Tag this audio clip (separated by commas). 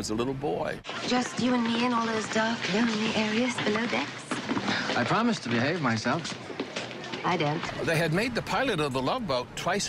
Speech